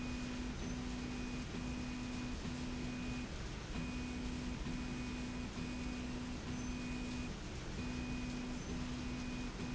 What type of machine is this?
slide rail